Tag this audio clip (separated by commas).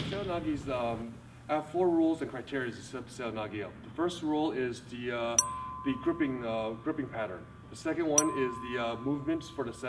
Speech